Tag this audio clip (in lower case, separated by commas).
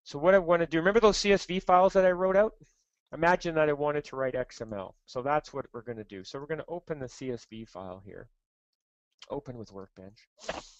speech